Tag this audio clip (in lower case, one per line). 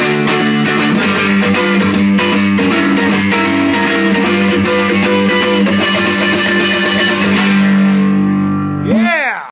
plucked string instrument
guitar
electric guitar
musical instrument
music
playing electric guitar
acoustic guitar
strum